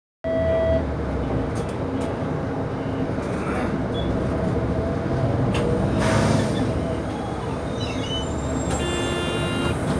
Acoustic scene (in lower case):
bus